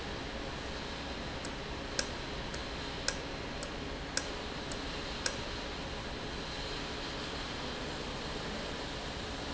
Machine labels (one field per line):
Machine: valve